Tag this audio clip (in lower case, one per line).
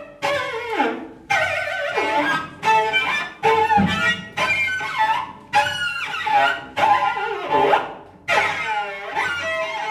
cello
music
musical instrument
bowed string instrument